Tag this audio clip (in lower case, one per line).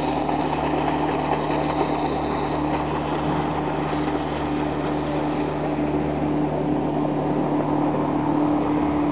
speedboat